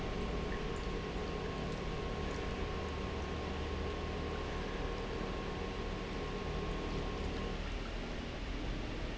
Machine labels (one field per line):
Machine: pump